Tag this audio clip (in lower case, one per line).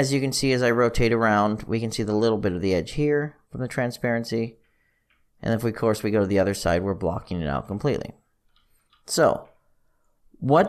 speech